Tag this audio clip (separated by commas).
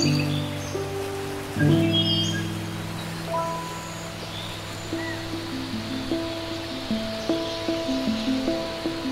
Stream